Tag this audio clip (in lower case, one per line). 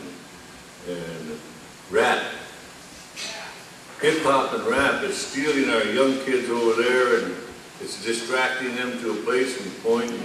speech